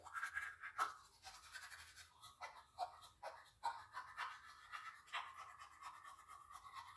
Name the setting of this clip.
restroom